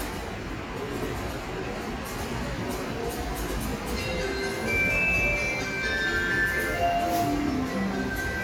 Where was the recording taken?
in a subway station